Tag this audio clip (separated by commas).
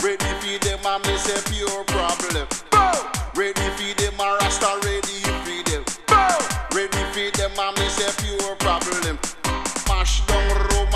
Hip hop music, Music